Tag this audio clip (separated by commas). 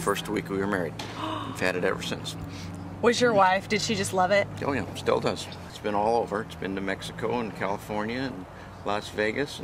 Speech